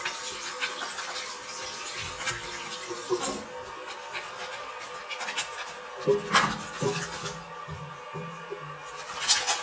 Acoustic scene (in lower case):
restroom